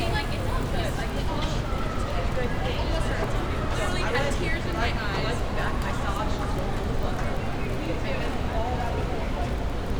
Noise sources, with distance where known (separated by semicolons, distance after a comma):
person or small group talking, near